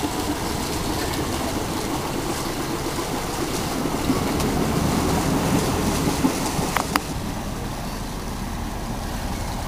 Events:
[0.00, 9.65] ship
[0.00, 9.65] water
[0.00, 9.65] wind
[4.37, 4.43] tick
[6.73, 6.79] tick
[6.92, 6.99] tick

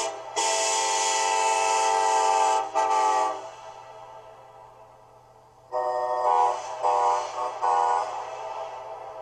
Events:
[0.00, 9.21] train horn

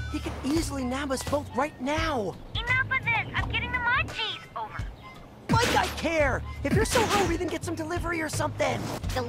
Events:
[0.00, 9.25] music
[0.40, 2.33] speech synthesizer
[0.44, 0.66] walk
[1.16, 1.34] walk
[2.55, 4.82] speech synthesizer
[5.47, 6.35] speech synthesizer
[5.49, 5.99] sound effect
[6.65, 8.71] speech synthesizer
[6.79, 7.31] sound effect

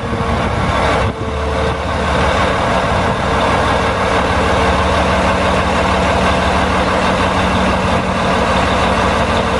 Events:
[0.00, 9.55] heavy engine (low frequency)
[0.00, 9.55] wind

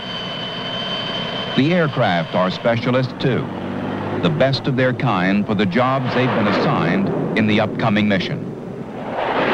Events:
[0.00, 1.03] aircraft
[0.00, 2.64] aircraft engine
[1.54, 3.46] male speech
[2.65, 6.07] mechanisms
[4.20, 7.01] male speech
[6.01, 9.53] aircraft
[7.32, 8.32] male speech

